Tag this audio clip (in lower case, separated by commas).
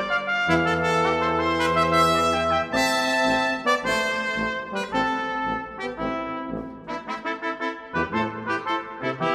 playing trumpet, brass instrument, trumpet